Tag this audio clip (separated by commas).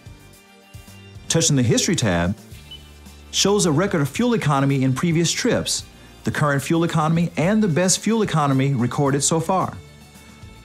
Speech, Music